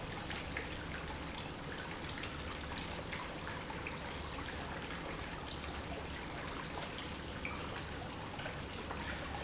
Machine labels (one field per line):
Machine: pump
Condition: normal